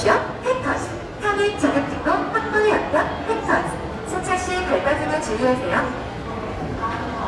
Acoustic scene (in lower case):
subway station